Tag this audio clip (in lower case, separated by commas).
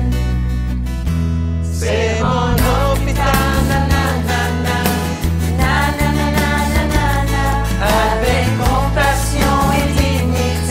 music